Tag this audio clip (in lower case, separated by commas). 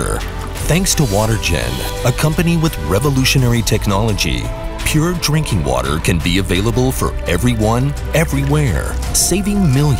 music, speech